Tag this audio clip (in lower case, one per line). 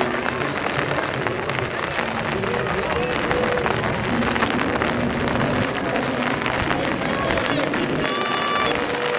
wind
wind noise (microphone)